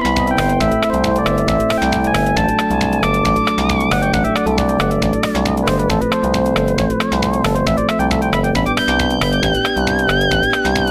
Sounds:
music

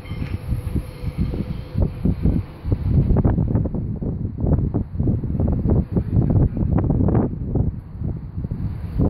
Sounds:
speedboat, boat

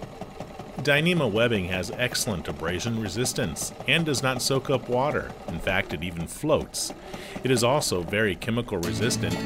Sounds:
speech, music, sewing machine

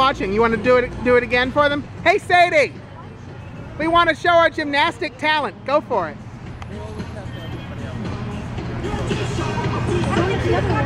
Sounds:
speech, music

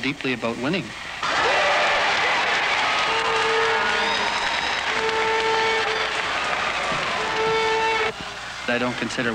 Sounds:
inside a public space, speech, inside a large room or hall

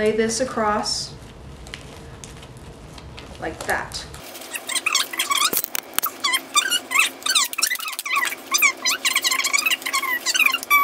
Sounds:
speech, inside a small room

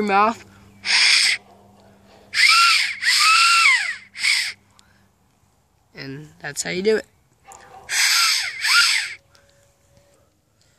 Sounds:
speech, outside, rural or natural

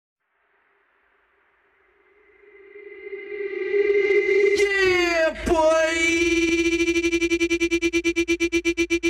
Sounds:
electronic music, music

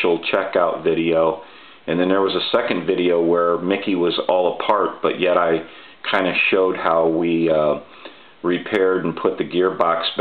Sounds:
speech

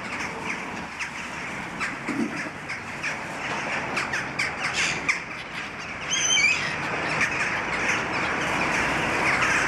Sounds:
outside, urban or man-made, bird vocalization

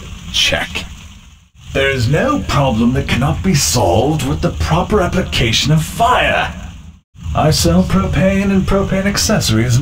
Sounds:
speech

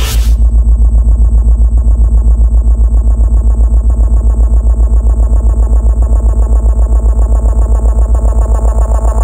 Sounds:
music

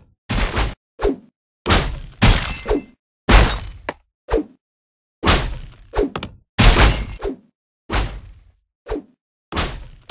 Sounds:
thwack

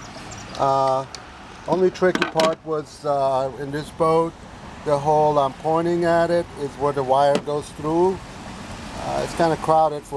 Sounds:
speech

